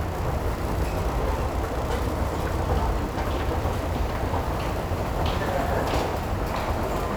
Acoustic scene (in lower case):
subway station